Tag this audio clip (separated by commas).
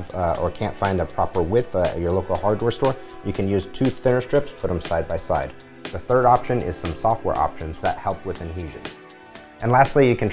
Music, Speech